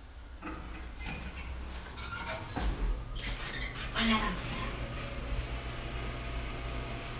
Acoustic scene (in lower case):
elevator